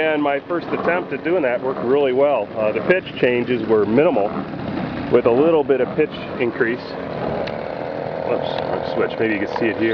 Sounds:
vehicle, speech

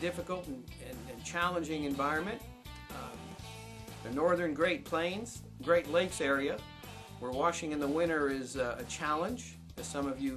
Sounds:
speech, music

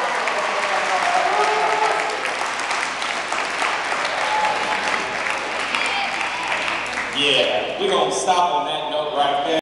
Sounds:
speech

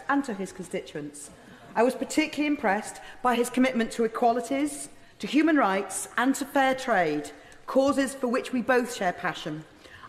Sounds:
narration, woman speaking, speech

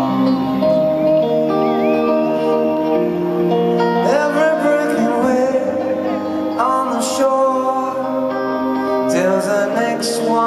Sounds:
music

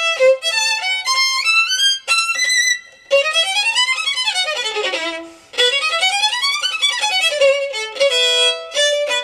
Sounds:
musical instrument, fiddle, music

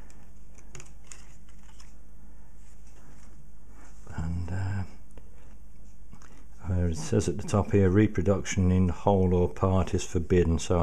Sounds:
speech

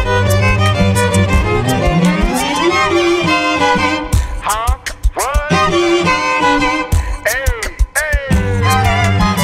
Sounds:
music, fiddle

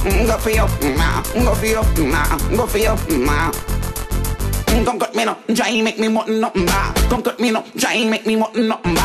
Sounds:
music

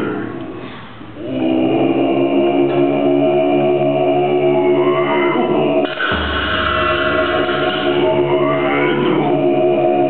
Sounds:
music

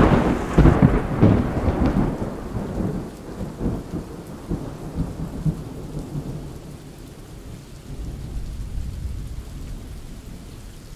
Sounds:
rain, thunder, thunderstorm, rain on surface

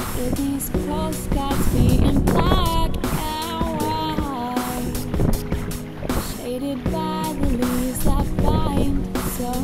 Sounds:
music, vehicle, canoe, boat

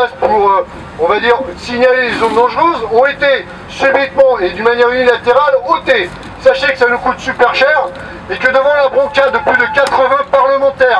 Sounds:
speech

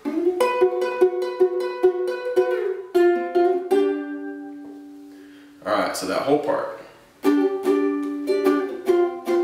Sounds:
speech, musical instrument, ukulele, pizzicato, plucked string instrument, music

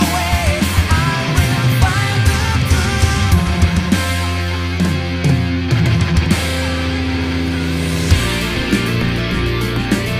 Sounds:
music, musical instrument, percussion, bass drum, drum, heavy metal, drum kit, rock music, hi-hat

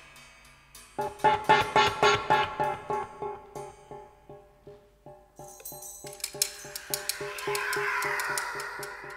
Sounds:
glockenspiel, marimba, mallet percussion

